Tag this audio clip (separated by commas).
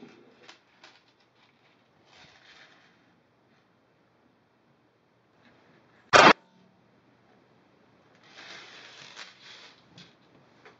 firing cannon